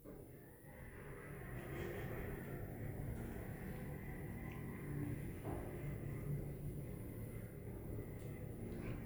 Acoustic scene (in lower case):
elevator